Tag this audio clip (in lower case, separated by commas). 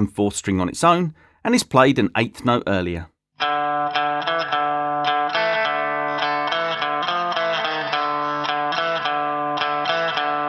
speech, musical instrument, guitar, music, plucked string instrument